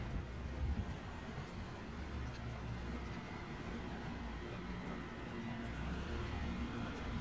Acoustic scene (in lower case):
residential area